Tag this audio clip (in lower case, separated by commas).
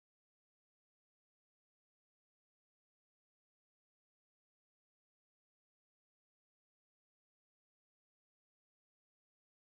opening or closing car doors